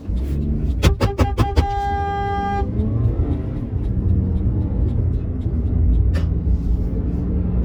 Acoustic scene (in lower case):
car